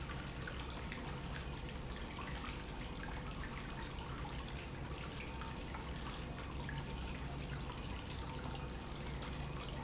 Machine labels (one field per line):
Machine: pump